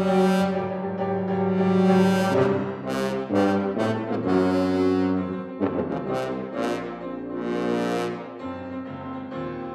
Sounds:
trombone
brass instrument

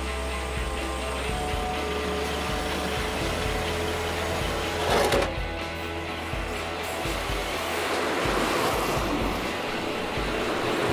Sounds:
truck
music
vehicle
outside, urban or man-made

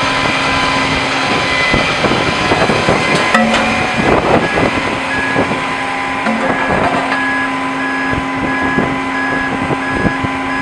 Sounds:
vehicle
truck

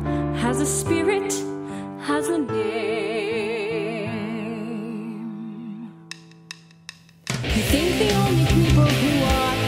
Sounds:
music

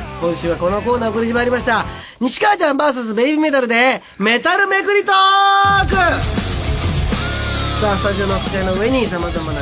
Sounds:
radio
speech
music

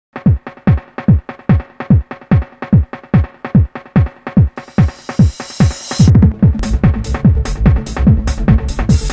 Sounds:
sampler
electronic music
music
trance music

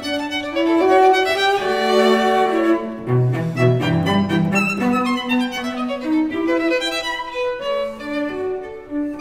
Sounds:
pizzicato
violin
musical instrument
music

